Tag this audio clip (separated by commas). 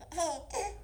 Human voice, Laughter